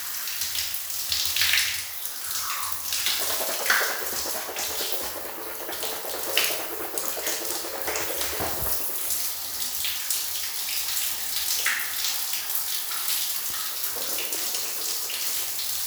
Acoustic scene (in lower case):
restroom